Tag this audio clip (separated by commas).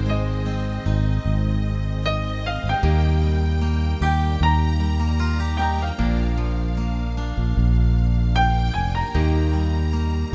Music